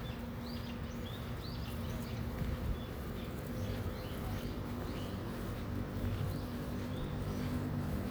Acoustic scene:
residential area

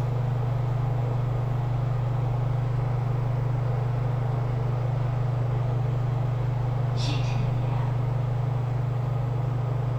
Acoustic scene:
elevator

